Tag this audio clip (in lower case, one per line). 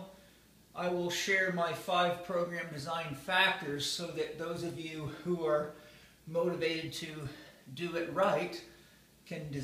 speech